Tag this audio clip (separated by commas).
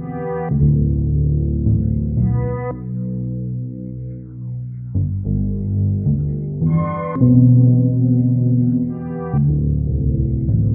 Piano, Keyboard (musical)